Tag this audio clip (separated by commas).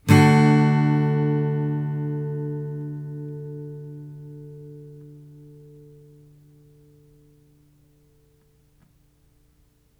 Musical instrument, Guitar, Strum, Music, Plucked string instrument